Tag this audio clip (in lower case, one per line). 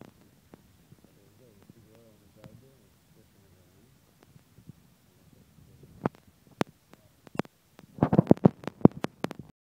speech